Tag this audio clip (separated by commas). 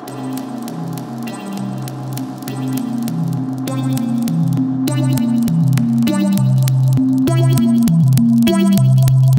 Crackle, Music